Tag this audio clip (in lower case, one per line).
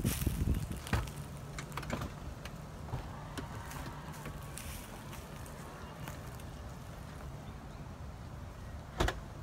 opening or closing car doors